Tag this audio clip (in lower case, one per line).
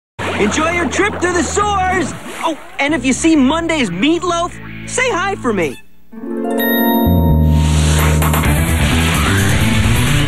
music
speech